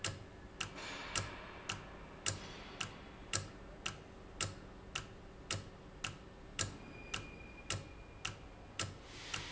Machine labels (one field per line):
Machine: valve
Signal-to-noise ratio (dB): 6 dB